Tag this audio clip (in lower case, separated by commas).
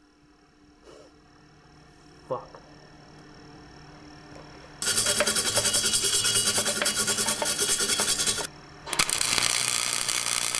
inside a small room, speech